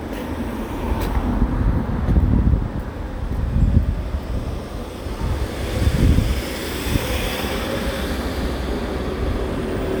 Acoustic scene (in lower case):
street